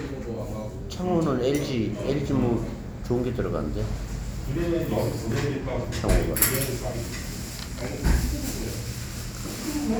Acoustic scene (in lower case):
restaurant